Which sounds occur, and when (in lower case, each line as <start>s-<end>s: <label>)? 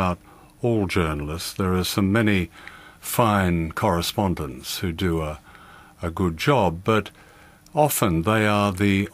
0.0s-0.1s: male speech
0.0s-9.1s: mechanisms
0.2s-0.5s: breathing
0.4s-0.5s: tick
0.6s-2.5s: male speech
1.1s-1.2s: tick
1.5s-1.6s: tick
2.5s-3.0s: breathing
2.6s-2.7s: tick
3.0s-5.4s: male speech
5.4s-5.9s: breathing
5.5s-5.7s: tick
5.9s-7.1s: male speech
7.1s-7.6s: breathing
7.3s-7.4s: tick
7.6s-7.7s: tick
7.7s-9.1s: male speech